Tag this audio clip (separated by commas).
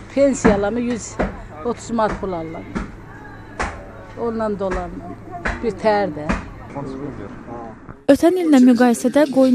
Speech